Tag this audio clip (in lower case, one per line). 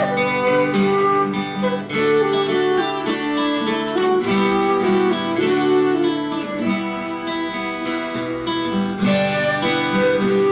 guitar
electric guitar
strum
musical instrument
plucked string instrument
music